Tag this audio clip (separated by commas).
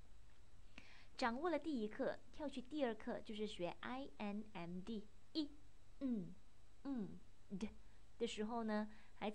Speech